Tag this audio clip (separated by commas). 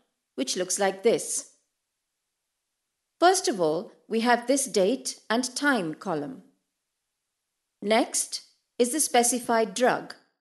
Speech